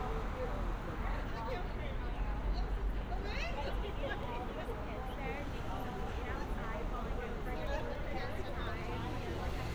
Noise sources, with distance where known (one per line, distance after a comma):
person or small group talking, near